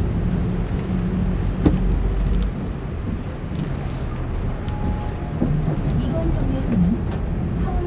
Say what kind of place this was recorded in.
bus